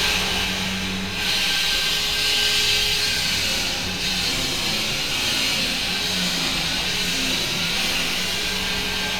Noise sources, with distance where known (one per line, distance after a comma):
unidentified powered saw, near